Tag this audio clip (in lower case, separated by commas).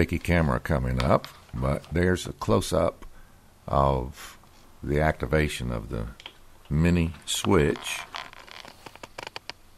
speech